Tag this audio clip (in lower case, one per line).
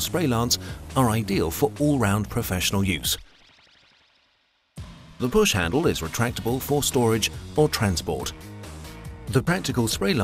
music
speech